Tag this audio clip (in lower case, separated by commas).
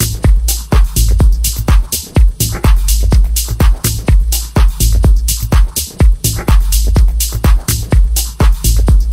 music, rattle